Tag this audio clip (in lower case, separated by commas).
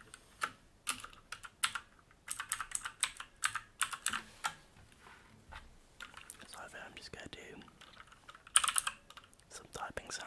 typing on computer keyboard